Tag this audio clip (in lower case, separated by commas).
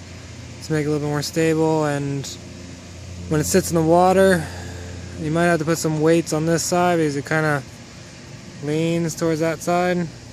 speech